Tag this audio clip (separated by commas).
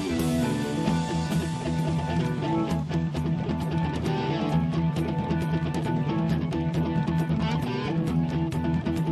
Music